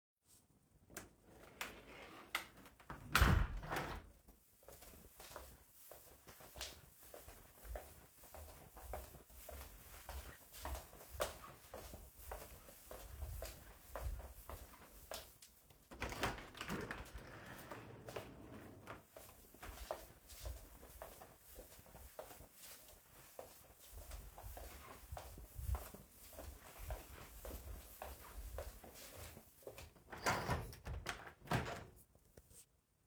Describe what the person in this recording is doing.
I close a window, walk into another room. Open a window fully, walk into another room. Open a window half way.